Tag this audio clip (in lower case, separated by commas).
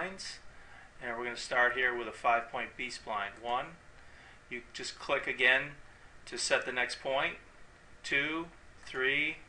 speech